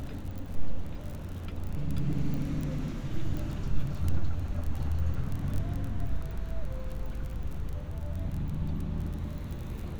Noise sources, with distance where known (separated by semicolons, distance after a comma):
music from an unclear source, far